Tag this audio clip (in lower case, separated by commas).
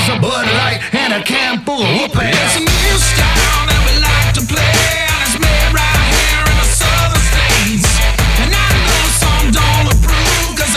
music